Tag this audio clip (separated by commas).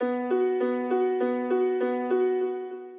Music, Musical instrument, Piano, Keyboard (musical)